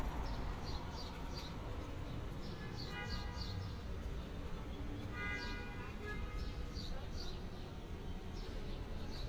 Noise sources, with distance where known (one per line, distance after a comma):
car horn, far
person or small group talking